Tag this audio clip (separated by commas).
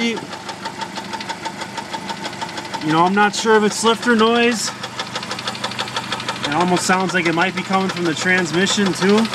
Engine, Motor vehicle (road), Noise, Car, Vehicle, Speech